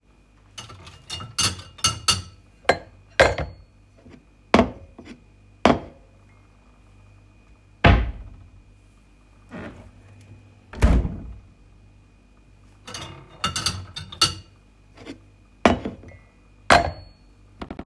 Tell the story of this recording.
I was sorting the dishes for the whole time and opened and closed drawer and fridge